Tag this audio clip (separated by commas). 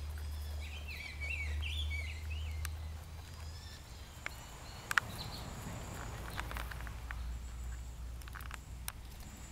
tweeting, tweet, Bird vocalization, Bird